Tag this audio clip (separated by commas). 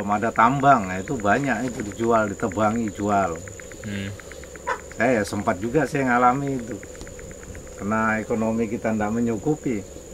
outside, rural or natural, Speech